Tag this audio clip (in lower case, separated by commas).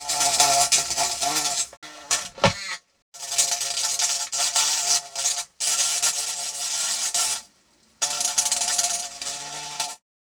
wild animals, animal, insect